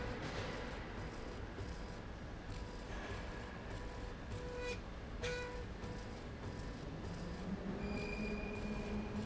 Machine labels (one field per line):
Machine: slide rail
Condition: normal